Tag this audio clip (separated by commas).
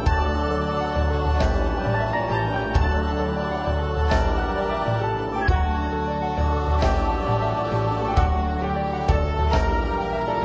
Music